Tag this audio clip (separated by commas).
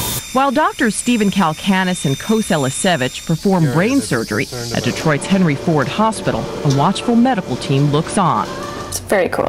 Speech